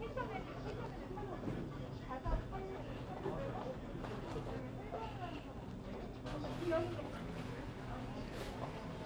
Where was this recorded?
in a crowded indoor space